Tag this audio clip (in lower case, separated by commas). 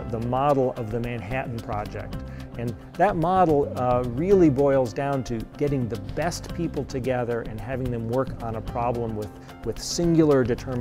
speech, music